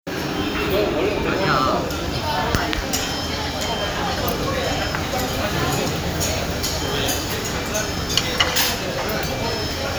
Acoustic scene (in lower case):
crowded indoor space